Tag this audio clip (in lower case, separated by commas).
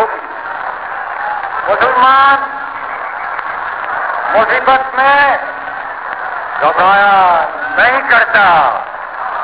monologue, speech, man speaking